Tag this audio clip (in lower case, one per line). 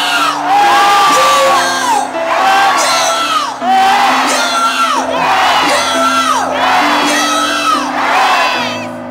music
speech